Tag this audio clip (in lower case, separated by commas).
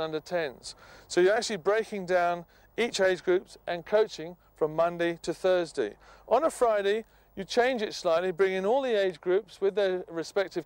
speech